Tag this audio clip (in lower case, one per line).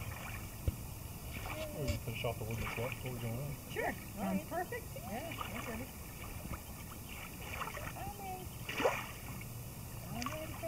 slosh